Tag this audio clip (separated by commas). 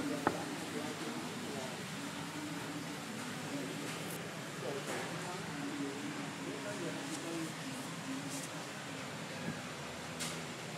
Speech